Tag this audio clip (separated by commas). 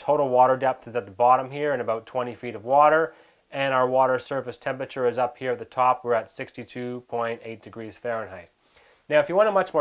Speech